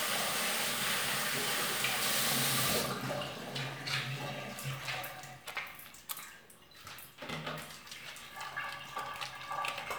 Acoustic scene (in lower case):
restroom